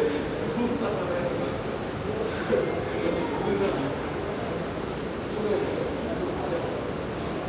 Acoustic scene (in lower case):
subway station